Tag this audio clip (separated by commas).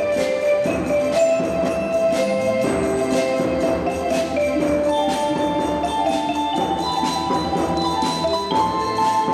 Music